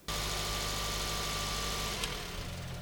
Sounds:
vehicle
car
motor vehicle (road)

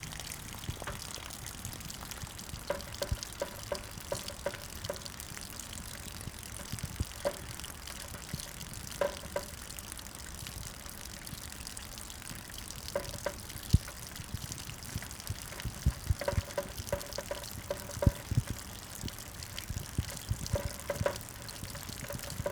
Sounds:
water
rain

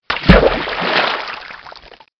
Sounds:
splash
liquid

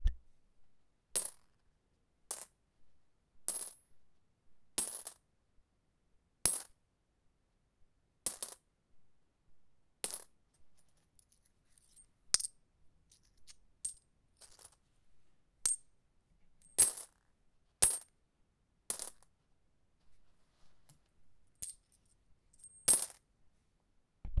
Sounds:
coin (dropping)
domestic sounds

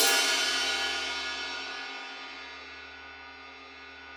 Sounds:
percussion
crash cymbal
cymbal
music
musical instrument

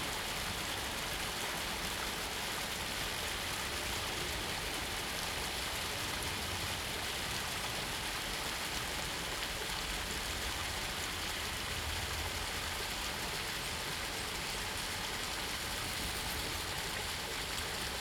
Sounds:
water
stream

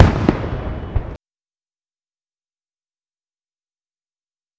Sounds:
fireworks
explosion

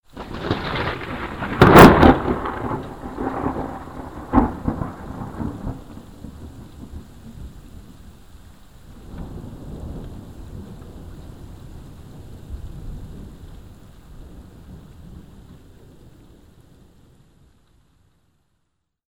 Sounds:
rain
thunder
thunderstorm
water

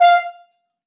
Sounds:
musical instrument
brass instrument
music

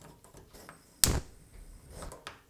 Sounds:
fire

